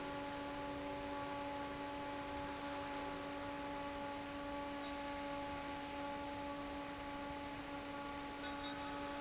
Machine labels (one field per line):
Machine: fan